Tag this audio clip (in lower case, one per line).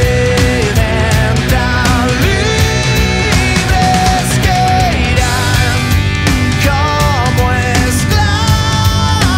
music